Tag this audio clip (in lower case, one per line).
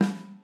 drum
percussion
music
snare drum
musical instrument